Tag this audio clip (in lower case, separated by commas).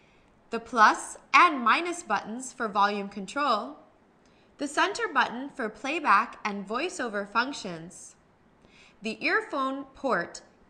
speech